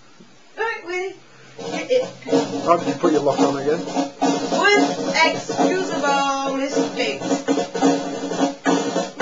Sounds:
music
musical instrument
speech

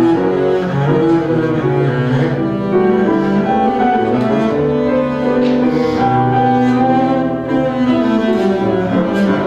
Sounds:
bowed string instrument
music

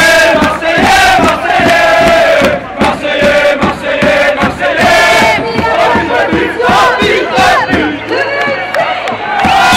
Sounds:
speech

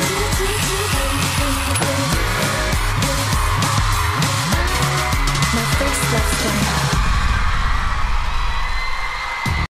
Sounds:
dance music
music
speech

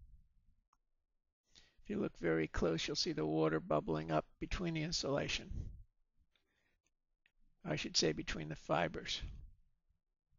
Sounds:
speech

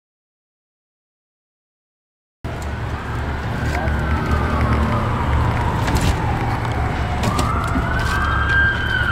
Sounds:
vehicle
speech

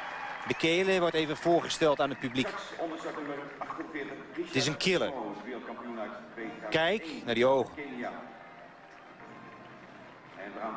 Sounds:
speech
outside, urban or man-made

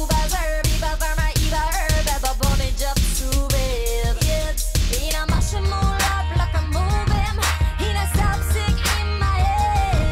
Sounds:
pop music
music

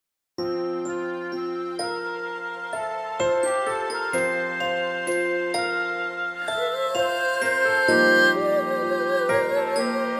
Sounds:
music

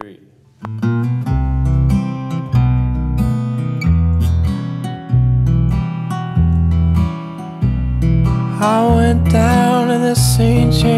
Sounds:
acoustic guitar
music

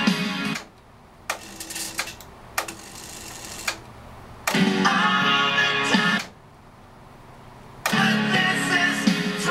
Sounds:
music
inside a small room

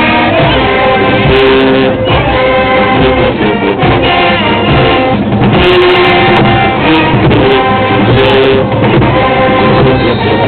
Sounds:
music

